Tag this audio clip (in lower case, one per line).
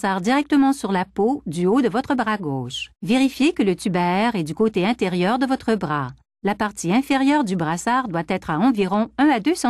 speech